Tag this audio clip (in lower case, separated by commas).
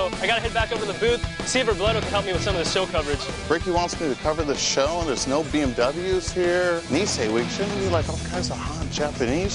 speech, music